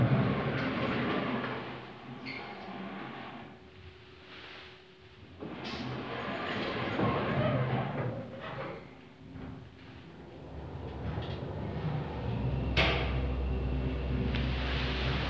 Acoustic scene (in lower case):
elevator